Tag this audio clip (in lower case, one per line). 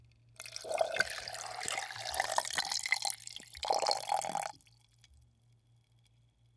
liquid